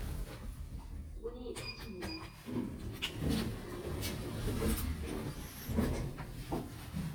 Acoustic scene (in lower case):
elevator